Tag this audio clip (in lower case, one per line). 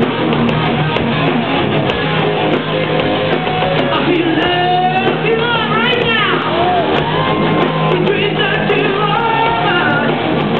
music